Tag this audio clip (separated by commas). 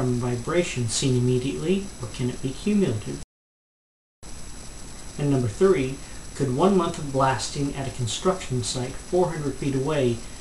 Speech